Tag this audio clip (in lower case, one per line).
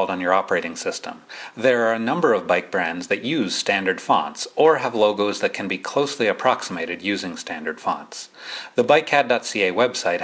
speech